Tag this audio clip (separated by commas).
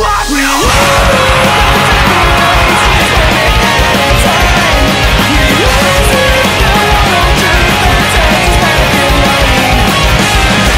Guitar, Plucked string instrument, Music, Musical instrument